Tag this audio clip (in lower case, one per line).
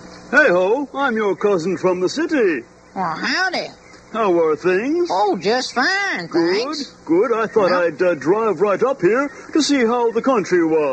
speech